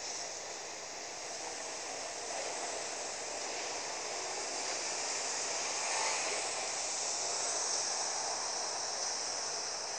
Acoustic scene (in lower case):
street